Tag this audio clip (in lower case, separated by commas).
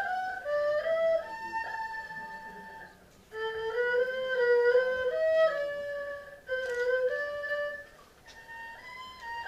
playing erhu